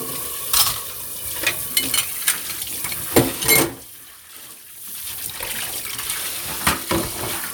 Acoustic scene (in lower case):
kitchen